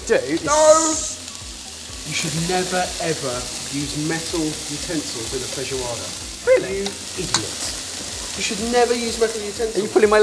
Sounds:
speech, inside a small room

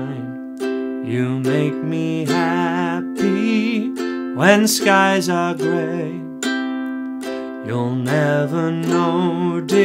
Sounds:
playing ukulele

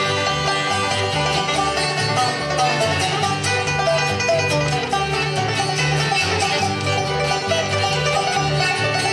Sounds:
banjo, bluegrass, playing banjo, music, musical instrument, guitar

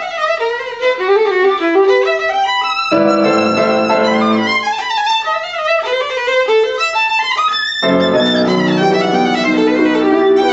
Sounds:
violin, musical instrument, music

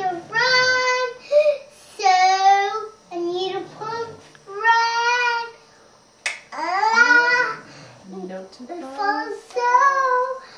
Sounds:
speech

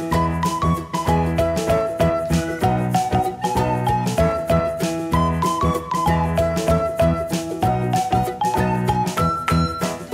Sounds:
music

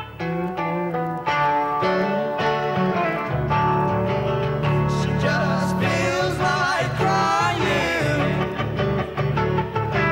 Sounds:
music

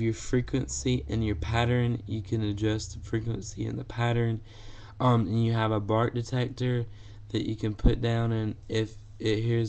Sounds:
speech

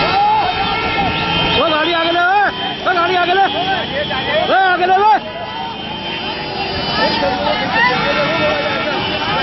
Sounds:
speech

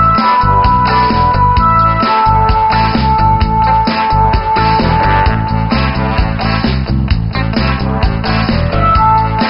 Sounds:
music

